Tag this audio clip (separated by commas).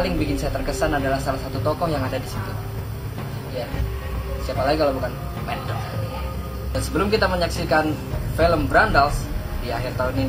Speech, Music